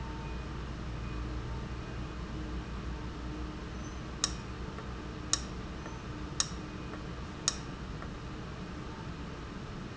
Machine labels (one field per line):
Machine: valve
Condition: abnormal